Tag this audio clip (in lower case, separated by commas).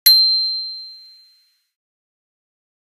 bicycle, alarm, bell, bicycle bell, vehicle